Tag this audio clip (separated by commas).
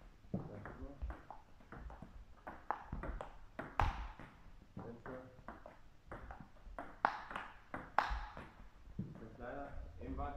playing table tennis